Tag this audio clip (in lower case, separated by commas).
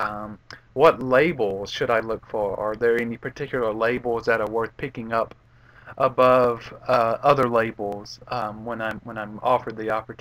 speech